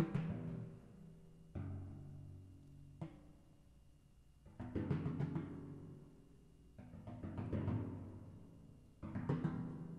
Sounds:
Timpani, Drum, Music, Musical instrument

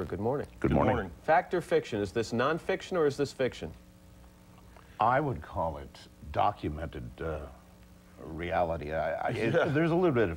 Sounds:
Speech

